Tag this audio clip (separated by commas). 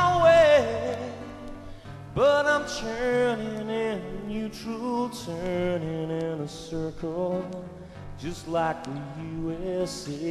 Music